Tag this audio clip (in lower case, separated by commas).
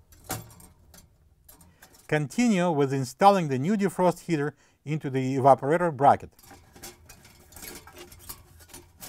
speech